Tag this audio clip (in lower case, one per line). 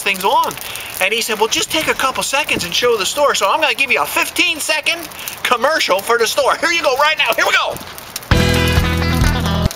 speech
music